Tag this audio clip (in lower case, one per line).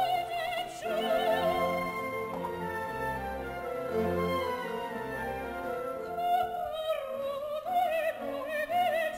classical music
opera
music